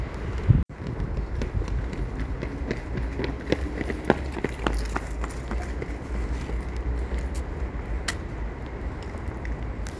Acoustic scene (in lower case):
residential area